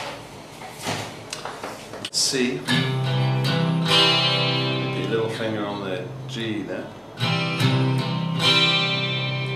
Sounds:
Musical instrument, Plucked string instrument, Electric guitar, Strum, Guitar, Music, Speech

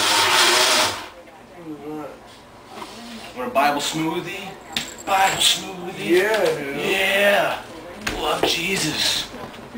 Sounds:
Blender

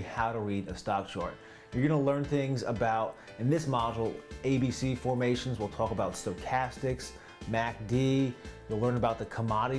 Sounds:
Speech, Music

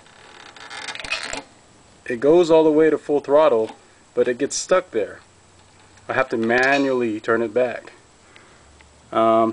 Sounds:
Speech

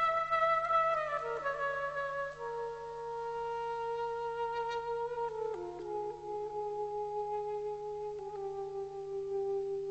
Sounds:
Music

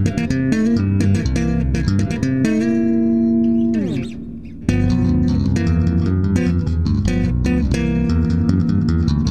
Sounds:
Bass guitar, Musical instrument, Plucked string instrument, Music, inside a small room, Guitar

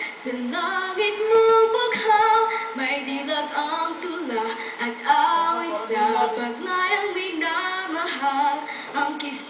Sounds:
Speech, Female singing

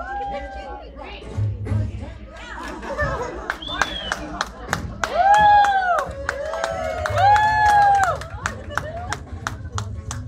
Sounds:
Speech, Music

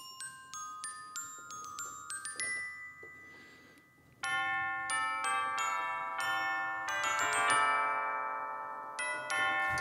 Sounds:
Music, Synthesizer, Ding-dong, Musical instrument, Keyboard (musical)

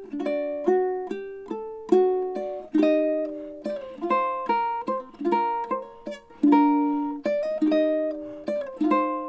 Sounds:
Ukulele, Plucked string instrument, Music, Musical instrument

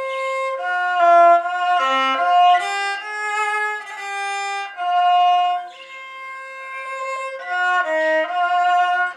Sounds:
fiddle, Music, Musical instrument

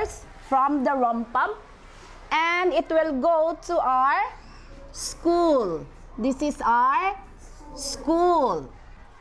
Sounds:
Speech

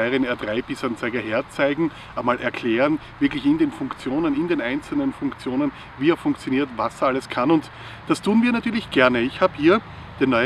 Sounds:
Speech

